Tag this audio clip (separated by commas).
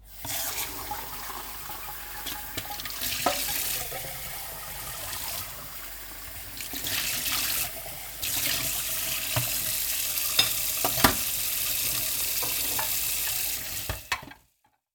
Sink (filling or washing), Domestic sounds, Water tap